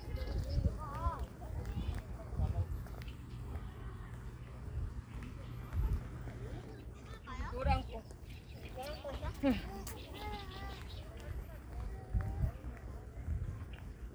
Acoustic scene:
park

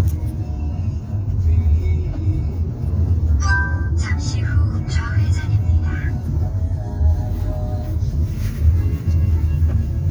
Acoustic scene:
car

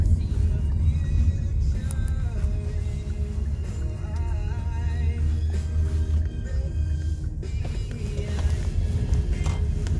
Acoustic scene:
car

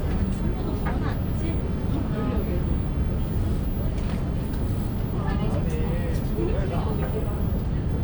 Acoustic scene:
bus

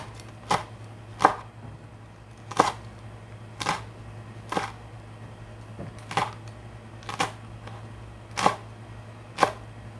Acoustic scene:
kitchen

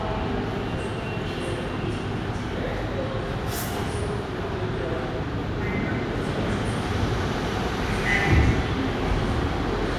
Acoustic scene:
subway station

